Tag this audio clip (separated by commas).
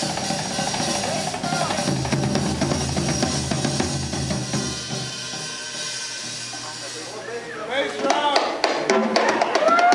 Drum, Bass drum, Musical instrument, Music, Drum kit, Speech